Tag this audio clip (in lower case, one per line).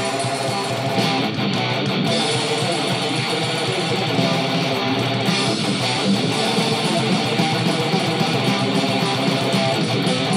plucked string instrument
music
musical instrument
guitar
heavy metal